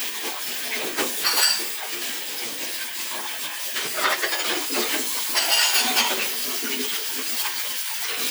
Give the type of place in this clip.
kitchen